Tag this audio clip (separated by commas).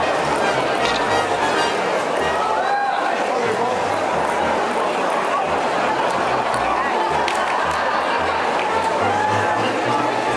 Music, Speech